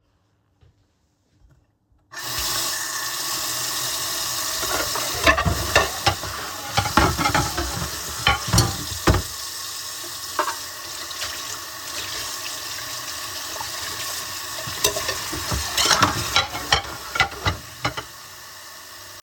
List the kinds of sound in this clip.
footsteps, running water, cutlery and dishes